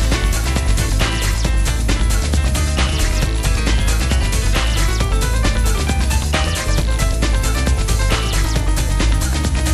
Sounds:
Music, Dance music

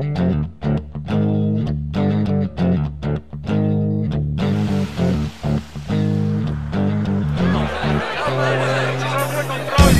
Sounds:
outside, rural or natural, Speech, Music

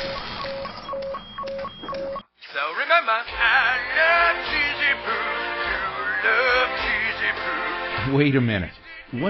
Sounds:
Speech, inside a small room, bleep, Music

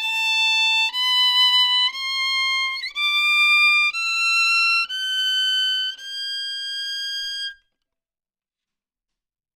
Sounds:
Music

